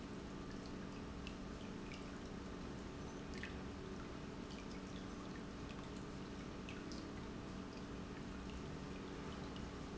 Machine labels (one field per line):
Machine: pump